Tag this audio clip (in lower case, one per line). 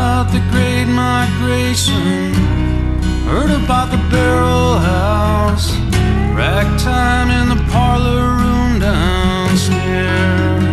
music